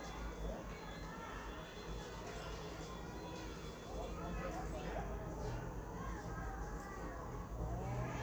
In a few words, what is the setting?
residential area